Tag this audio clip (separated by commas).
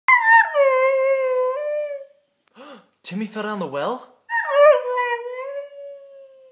Dog, Animal, Domestic animals, Howl